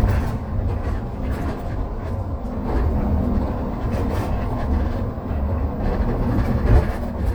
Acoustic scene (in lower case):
bus